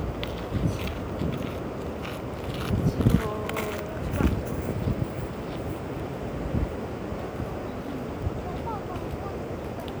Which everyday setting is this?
park